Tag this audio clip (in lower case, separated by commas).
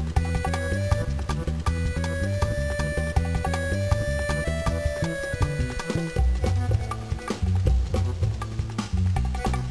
music, funny music